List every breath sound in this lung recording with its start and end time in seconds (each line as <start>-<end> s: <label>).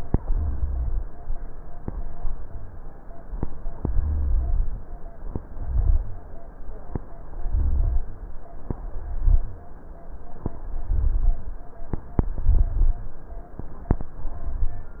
0.27-1.12 s: inhalation
0.27-1.12 s: rhonchi
3.95-4.80 s: inhalation
3.95-4.80 s: rhonchi
5.52-6.38 s: inhalation
5.52-6.38 s: rhonchi
7.42-8.27 s: inhalation
7.42-8.27 s: rhonchi
8.84-9.70 s: inhalation
8.84-9.70 s: rhonchi
10.83-11.65 s: inhalation
10.83-11.65 s: rhonchi